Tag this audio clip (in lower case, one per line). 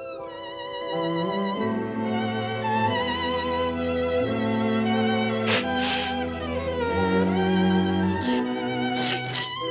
music